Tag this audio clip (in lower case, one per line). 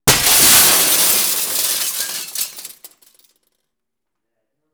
shatter
glass